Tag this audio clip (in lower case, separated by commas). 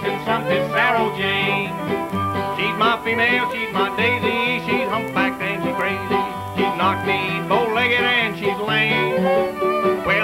musical instrument, violin, music